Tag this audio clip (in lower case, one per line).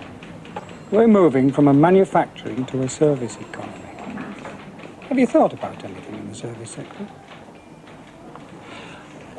speech